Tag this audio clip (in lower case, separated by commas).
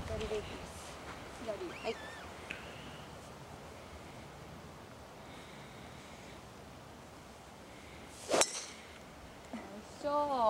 golf driving